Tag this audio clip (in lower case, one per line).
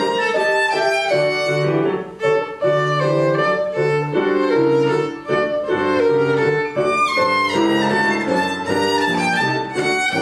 fiddle
musical instrument
music